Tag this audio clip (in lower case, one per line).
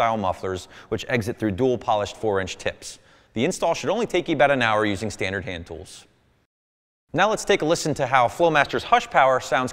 speech